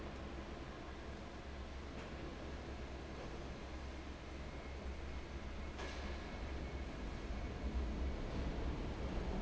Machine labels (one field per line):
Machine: fan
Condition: abnormal